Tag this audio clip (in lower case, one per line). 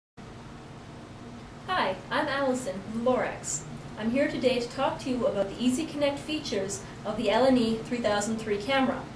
speech